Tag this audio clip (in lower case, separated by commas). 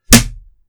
thud